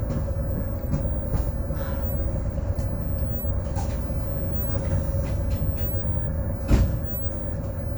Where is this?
on a bus